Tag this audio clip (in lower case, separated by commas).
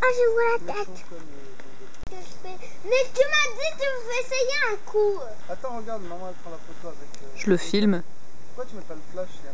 speech, outside, rural or natural